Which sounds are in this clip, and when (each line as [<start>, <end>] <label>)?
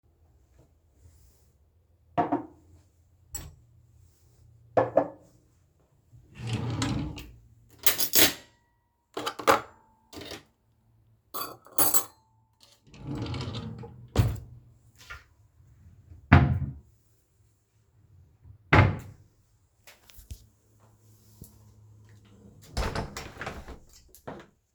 [2.00, 3.69] cutlery and dishes
[4.63, 5.28] cutlery and dishes
[6.26, 7.48] wardrobe or drawer
[7.76, 12.12] cutlery and dishes
[12.83, 14.66] wardrobe or drawer
[14.01, 14.58] cutlery and dishes
[16.18, 16.95] wardrobe or drawer
[18.48, 19.38] wardrobe or drawer
[22.73, 24.67] window